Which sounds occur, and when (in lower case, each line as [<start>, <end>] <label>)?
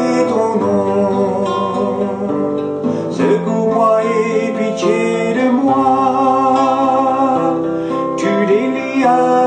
[0.00, 9.45] music
[0.01, 2.29] chant
[2.86, 3.10] breathing
[3.15, 7.59] chant
[7.80, 8.08] breathing
[8.20, 9.45] chant